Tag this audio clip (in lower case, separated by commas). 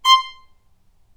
bowed string instrument, music, musical instrument